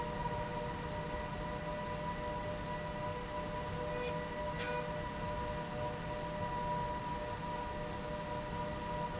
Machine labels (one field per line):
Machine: slide rail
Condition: normal